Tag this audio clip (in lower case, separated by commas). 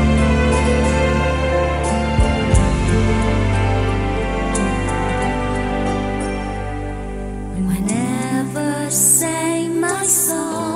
sad music, music